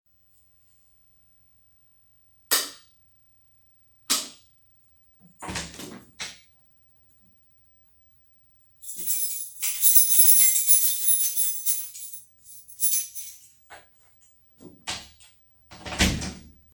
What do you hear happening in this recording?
I turned off the lamps in studio opened the door took the key and closed the door